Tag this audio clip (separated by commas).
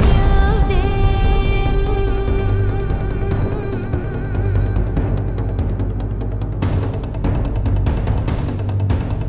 Music, Echo